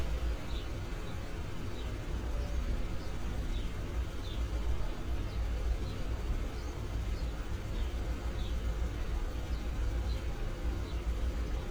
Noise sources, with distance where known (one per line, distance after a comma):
engine of unclear size